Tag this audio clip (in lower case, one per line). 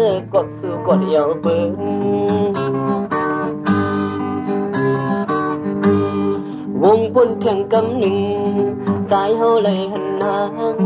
music